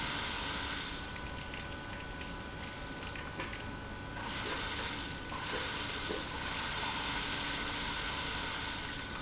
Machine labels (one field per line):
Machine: pump